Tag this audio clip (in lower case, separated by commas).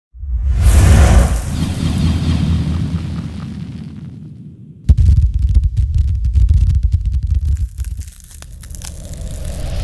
music